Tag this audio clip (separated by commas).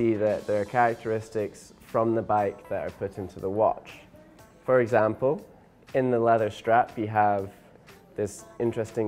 Speech, Music